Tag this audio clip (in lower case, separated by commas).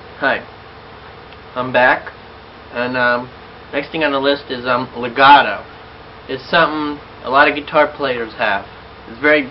speech